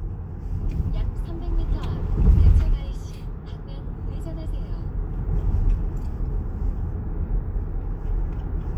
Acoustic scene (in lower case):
car